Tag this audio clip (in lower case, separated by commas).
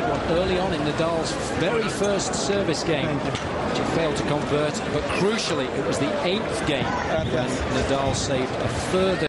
speech